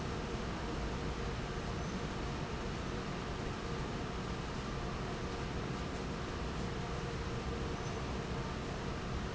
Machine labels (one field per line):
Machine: fan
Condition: normal